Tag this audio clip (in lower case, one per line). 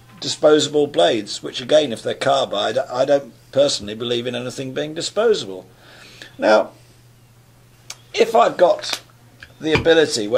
speech